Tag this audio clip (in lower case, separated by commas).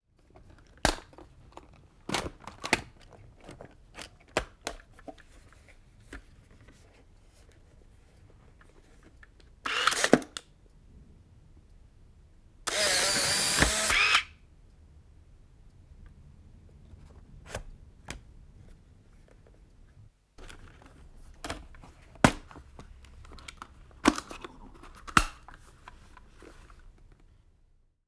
camera, mechanisms